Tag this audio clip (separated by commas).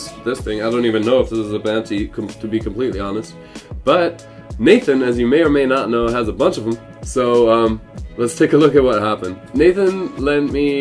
Rock and roll, Music, Speech